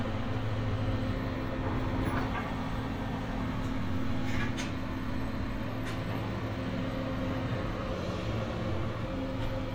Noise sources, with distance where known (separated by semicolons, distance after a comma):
engine of unclear size